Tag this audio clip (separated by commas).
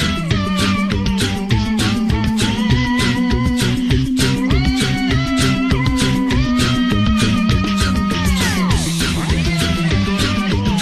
Music